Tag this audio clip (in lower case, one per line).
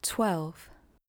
female speech
speech
human voice